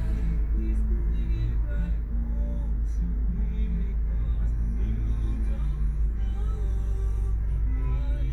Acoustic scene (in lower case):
car